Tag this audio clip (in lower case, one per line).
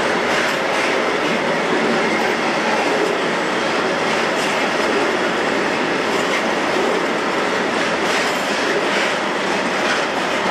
clickety-clack
rail transport
railroad car
train